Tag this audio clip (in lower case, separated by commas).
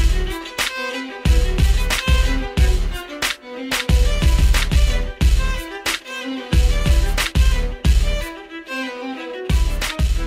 fiddle, musical instrument, music